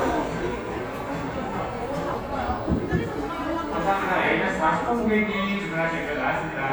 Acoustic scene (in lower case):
crowded indoor space